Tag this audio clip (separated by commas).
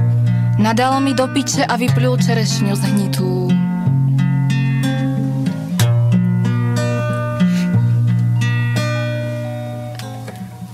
Music, Speech